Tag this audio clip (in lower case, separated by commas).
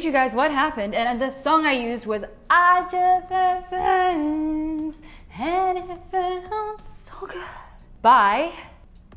speech